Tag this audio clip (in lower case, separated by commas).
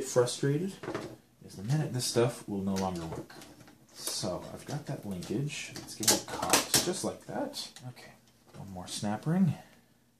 inside a small room, speech